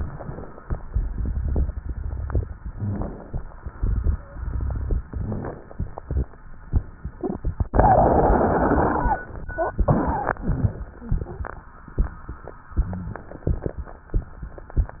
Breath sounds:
0.00-0.72 s: inhalation
0.84-2.40 s: exhalation
0.84-2.40 s: crackles
2.70-3.50 s: inhalation
3.69-5.06 s: exhalation
3.69-5.06 s: crackles
5.09-6.03 s: inhalation
7.17-9.25 s: exhalation
7.17-9.25 s: crackles
9.79-10.87 s: exhalation
9.79-10.87 s: crackles

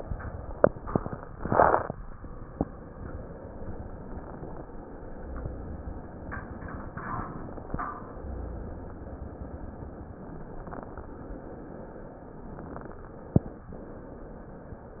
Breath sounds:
5.13-6.11 s: exhalation
8.10-9.09 s: exhalation

